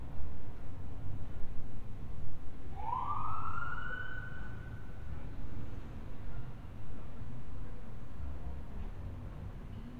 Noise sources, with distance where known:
siren, far

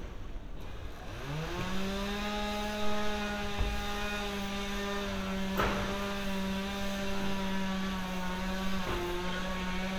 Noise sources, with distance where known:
chainsaw, near

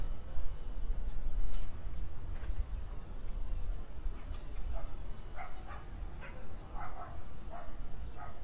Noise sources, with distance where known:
dog barking or whining, far

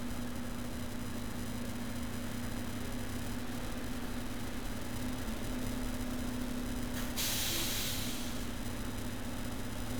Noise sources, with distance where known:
engine of unclear size

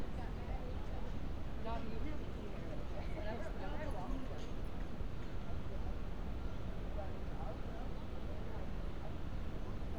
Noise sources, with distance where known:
person or small group talking, near

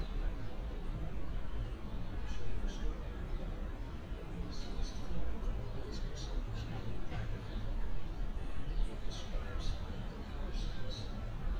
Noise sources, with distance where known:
person or small group talking

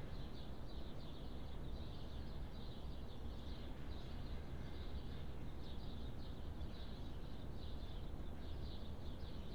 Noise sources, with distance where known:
background noise

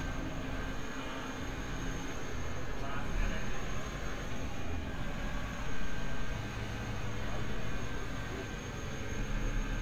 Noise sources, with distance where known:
person or small group talking, far

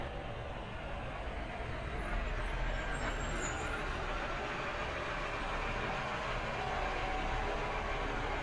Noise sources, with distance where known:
large-sounding engine, near

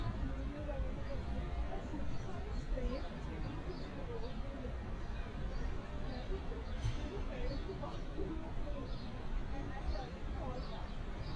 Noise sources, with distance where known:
person or small group talking, near

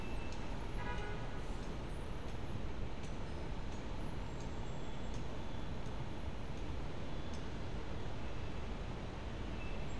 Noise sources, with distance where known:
car horn, far

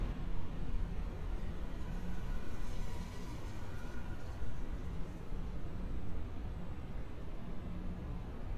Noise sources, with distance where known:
background noise

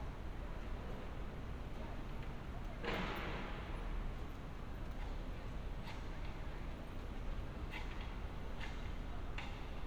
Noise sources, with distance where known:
person or small group talking

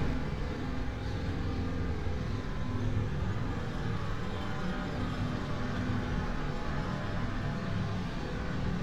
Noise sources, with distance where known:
engine of unclear size, far
jackhammer, far

